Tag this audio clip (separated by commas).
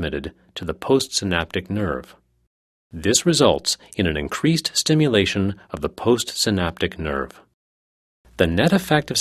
Speech, Speech synthesizer